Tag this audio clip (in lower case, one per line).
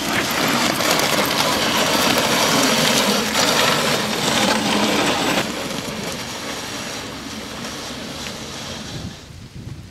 outside, rural or natural